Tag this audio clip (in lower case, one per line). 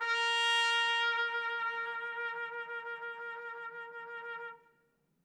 musical instrument
music
trumpet
brass instrument